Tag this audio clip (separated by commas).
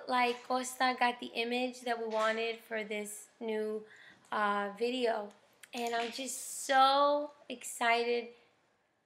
Speech